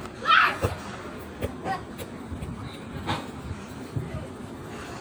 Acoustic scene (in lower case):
park